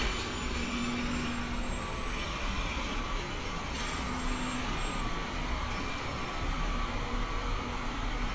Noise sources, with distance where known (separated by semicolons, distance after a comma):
jackhammer